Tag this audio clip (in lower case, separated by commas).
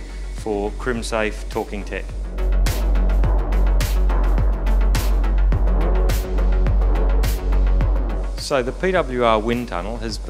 speech, music